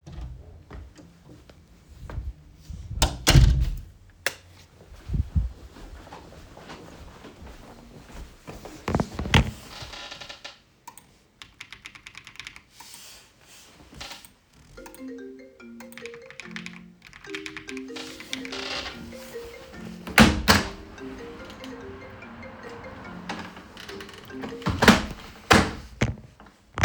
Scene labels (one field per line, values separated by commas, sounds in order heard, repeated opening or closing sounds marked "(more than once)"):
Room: bedroom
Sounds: door, light switch, footsteps, keyboard typing, phone ringing, window (more than once)